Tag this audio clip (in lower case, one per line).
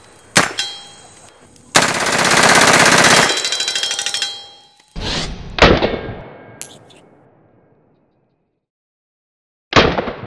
machine gun shooting